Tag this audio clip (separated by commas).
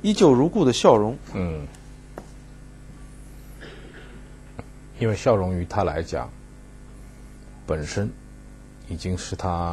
Speech